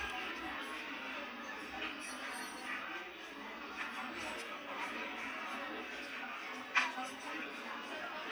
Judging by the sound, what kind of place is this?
restaurant